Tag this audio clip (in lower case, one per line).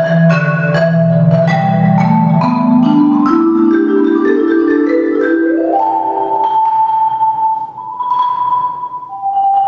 music